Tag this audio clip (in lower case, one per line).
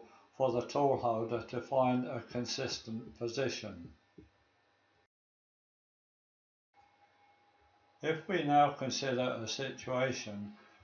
speech